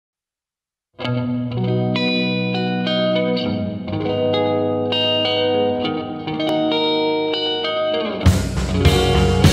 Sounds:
music

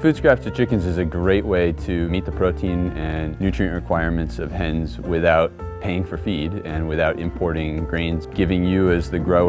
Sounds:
music, speech

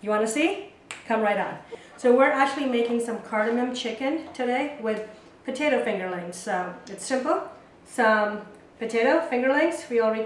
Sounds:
speech

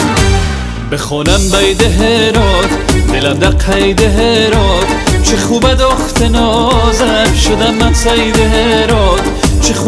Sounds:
folk music, music

